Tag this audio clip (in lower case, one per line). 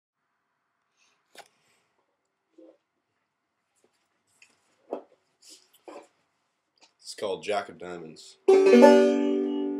musical instrument
speech
music
plucked string instrument
banjo